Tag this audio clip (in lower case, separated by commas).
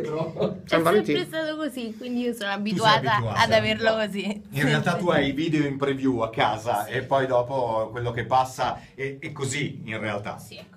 speech